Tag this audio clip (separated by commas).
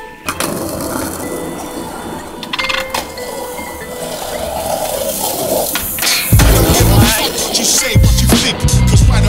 Skateboard, Music